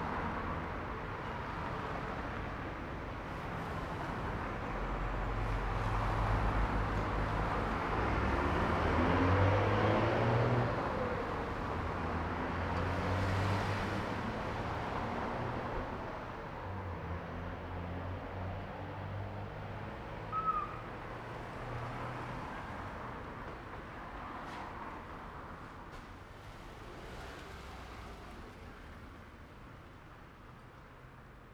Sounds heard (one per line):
bus engine accelerating
car
car engine accelerating
bus compressor
car wheels rolling
bus